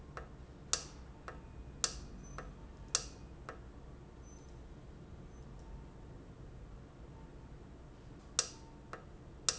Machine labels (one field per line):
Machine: valve